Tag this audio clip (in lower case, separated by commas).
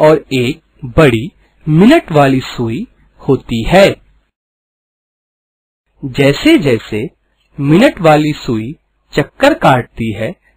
speech